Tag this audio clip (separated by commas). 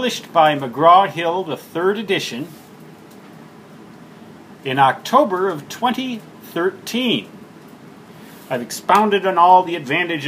Speech